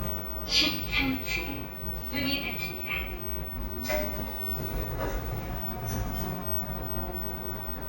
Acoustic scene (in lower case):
elevator